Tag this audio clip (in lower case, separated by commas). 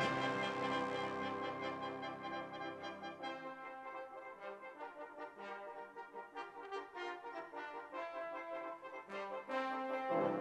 music, trombone, musical instrument